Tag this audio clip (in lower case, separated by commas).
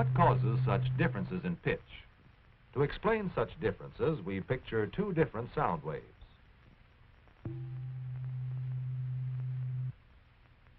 speech